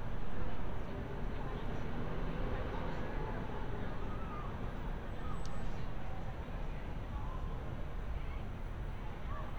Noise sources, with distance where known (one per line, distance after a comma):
unidentified human voice, far